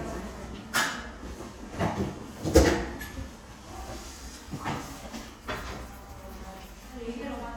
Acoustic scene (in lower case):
crowded indoor space